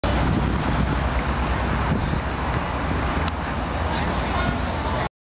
Traffic noise rumbles and a man speaks briefly